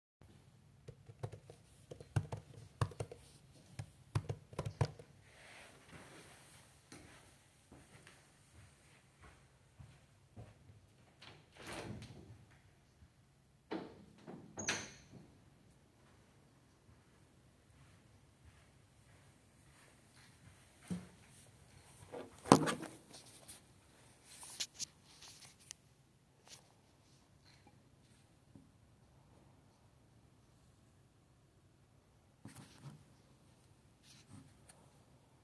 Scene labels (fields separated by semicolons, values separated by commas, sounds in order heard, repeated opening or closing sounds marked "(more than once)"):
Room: office; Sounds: keyboard typing, footsteps, window (more than once)